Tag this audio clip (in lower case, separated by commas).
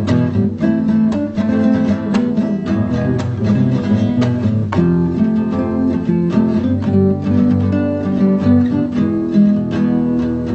musical instrument, plucked string instrument, strum, music, guitar, acoustic guitar